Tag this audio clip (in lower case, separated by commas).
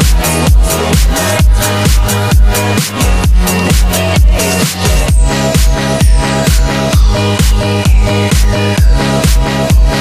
music, rock music